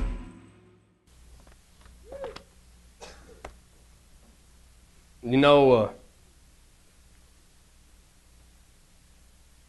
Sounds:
Speech

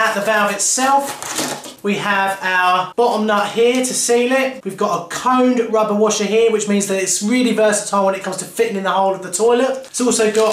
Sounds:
Speech

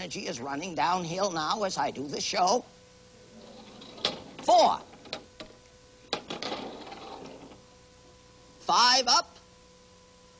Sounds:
Speech

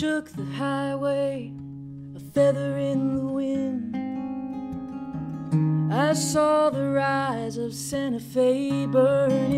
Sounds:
Strum, Music, Musical instrument, playing acoustic guitar, Guitar, Acoustic guitar, Plucked string instrument

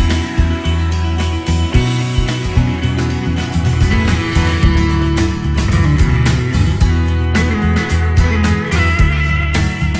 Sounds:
Music

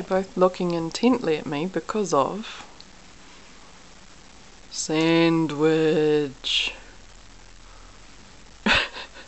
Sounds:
Speech

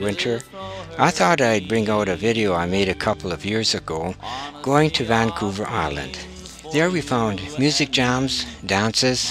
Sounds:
Traditional music, Speech

